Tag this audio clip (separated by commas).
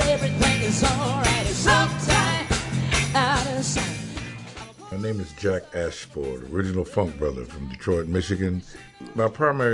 Speech, Music